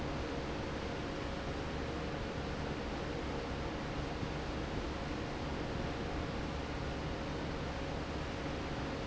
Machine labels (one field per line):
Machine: fan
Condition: normal